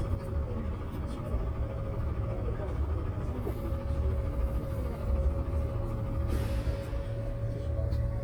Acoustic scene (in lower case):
bus